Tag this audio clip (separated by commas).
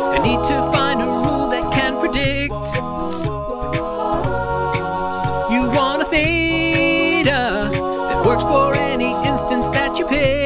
A capella